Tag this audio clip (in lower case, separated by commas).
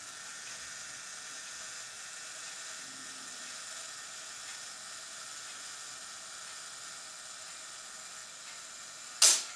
camera, single-lens reflex camera